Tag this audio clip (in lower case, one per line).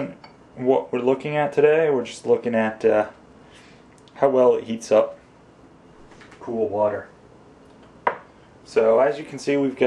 speech